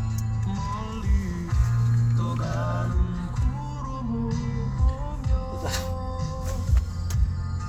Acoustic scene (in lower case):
car